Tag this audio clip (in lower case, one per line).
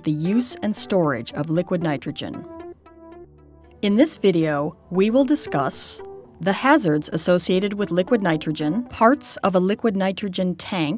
music
speech